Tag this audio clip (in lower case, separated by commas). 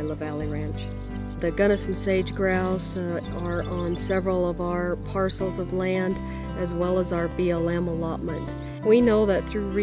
music, speech